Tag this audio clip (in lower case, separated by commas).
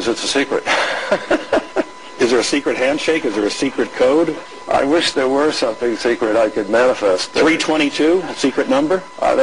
speech